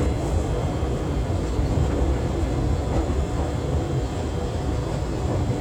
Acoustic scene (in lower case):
subway train